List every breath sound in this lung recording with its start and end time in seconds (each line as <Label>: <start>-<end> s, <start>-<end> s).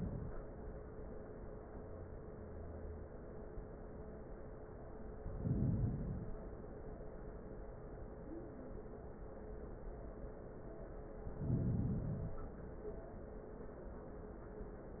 Inhalation: 5.11-6.57 s, 11.14-12.60 s